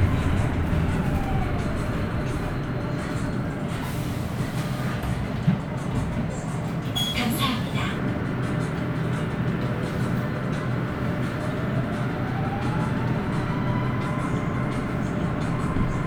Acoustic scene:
bus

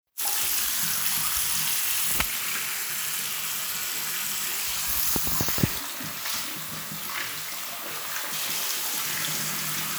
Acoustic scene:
restroom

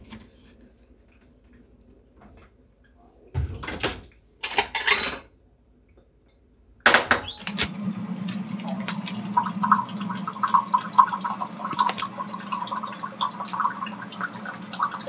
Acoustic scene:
kitchen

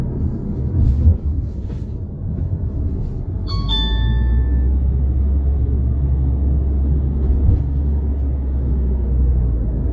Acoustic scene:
car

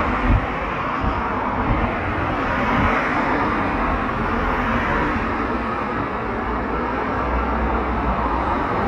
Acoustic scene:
street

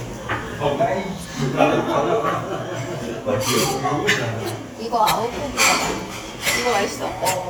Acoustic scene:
restaurant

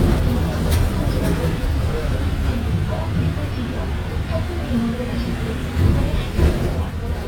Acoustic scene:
bus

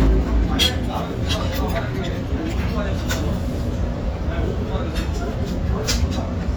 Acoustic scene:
restaurant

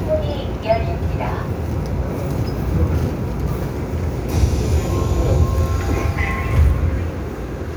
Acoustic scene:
subway train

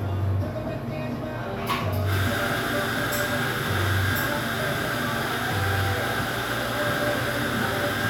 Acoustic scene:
cafe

